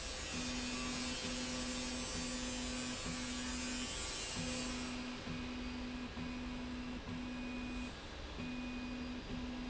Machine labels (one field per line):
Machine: slide rail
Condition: normal